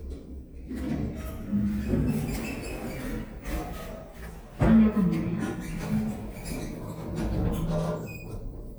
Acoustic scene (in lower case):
elevator